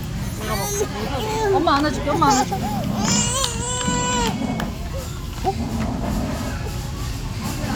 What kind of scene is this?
restaurant